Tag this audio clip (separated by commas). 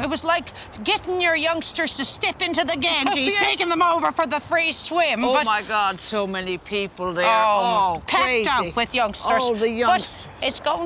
Speech